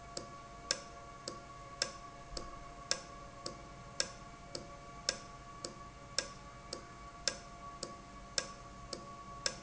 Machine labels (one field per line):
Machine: valve